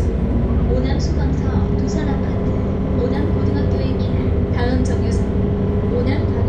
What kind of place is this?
bus